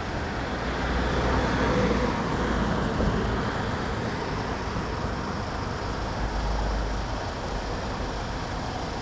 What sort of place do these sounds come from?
street